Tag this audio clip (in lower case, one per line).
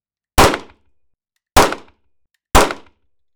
gunfire
explosion